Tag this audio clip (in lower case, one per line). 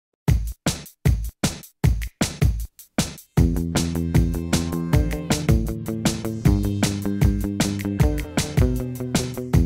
drum machine